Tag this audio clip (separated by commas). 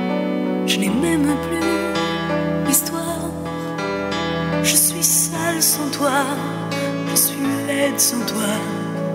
Music